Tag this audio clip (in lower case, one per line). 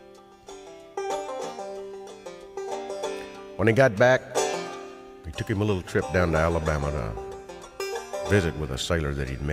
music
speech